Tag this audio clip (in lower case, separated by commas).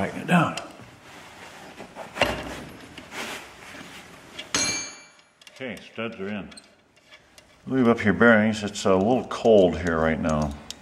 speech